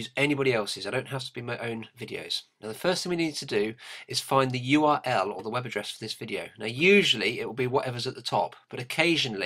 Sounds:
Speech

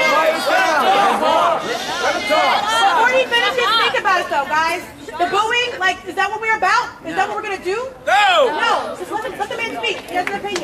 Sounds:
Speech, Chatter, inside a large room or hall

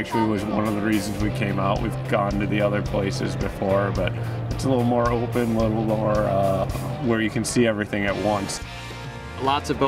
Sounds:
Speech, Music

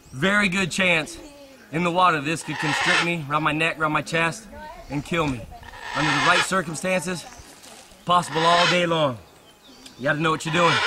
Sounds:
Speech, Animal, outside, rural or natural

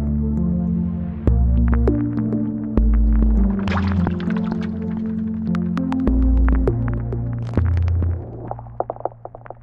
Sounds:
Raindrop, Rain

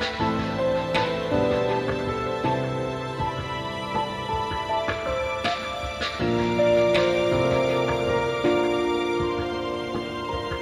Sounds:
Music

